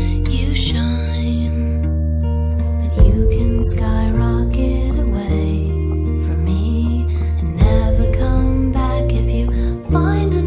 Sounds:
music
rhythm and blues

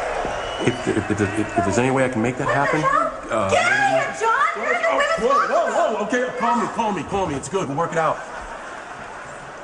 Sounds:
speech
snicker

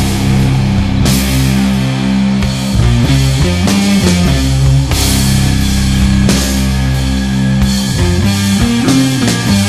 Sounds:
music

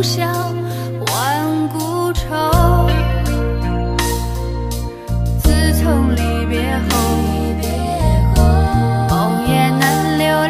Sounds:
music

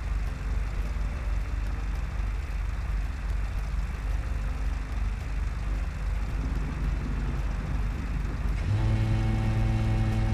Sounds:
outside, urban or man-made
vehicle

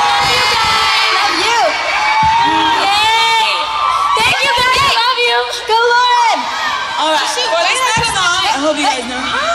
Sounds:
speech

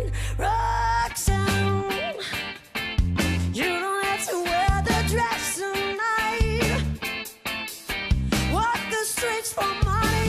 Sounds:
music

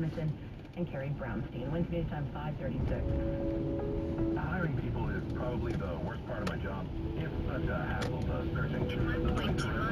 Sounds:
speech
music

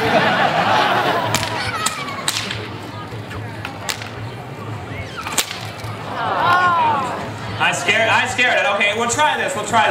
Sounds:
speech

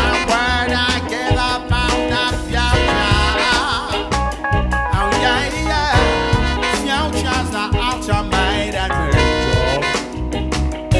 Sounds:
music
singing

